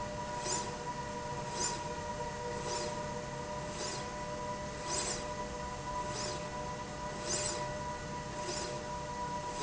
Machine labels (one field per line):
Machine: slide rail